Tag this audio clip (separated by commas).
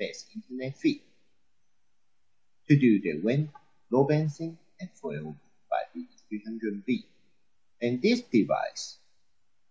monologue, Speech